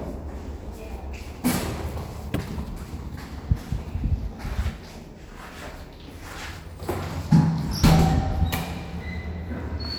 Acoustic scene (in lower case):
elevator